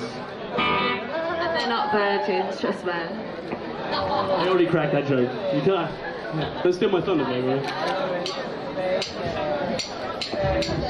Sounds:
speech, music

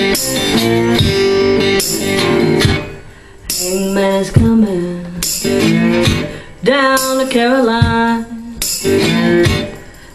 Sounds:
guitar, bass guitar, musical instrument, plucked string instrument, acoustic guitar, strum, music, electric guitar

